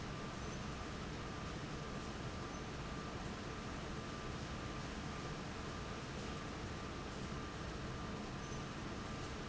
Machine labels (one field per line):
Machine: fan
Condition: abnormal